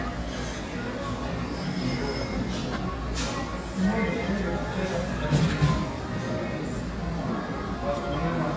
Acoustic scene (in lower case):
cafe